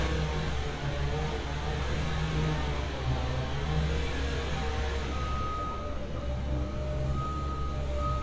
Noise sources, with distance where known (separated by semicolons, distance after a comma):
unidentified powered saw, far